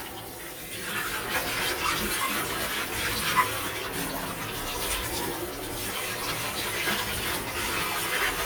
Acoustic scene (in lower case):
kitchen